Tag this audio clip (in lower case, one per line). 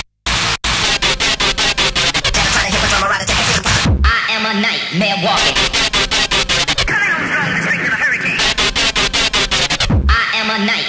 music
cacophony